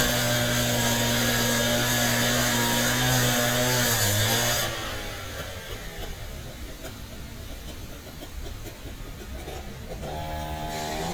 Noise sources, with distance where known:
chainsaw, near

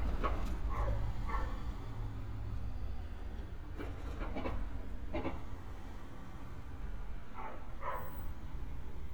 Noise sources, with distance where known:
dog barking or whining, far

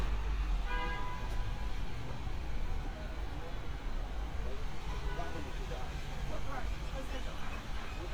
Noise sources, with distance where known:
medium-sounding engine, near
car horn, near
person or small group talking, near

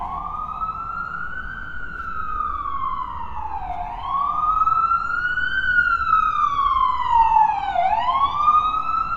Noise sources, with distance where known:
siren, near

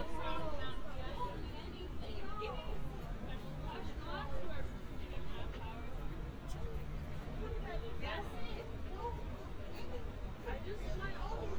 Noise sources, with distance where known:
person or small group talking, near

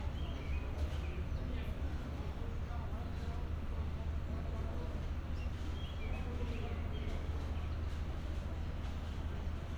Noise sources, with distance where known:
person or small group talking, far

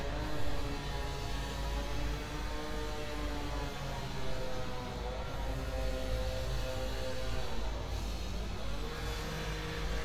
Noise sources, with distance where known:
unidentified powered saw

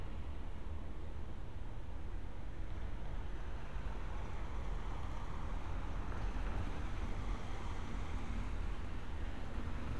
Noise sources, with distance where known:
engine of unclear size

